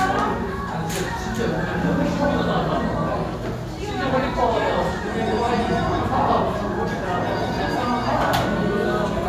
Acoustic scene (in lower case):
restaurant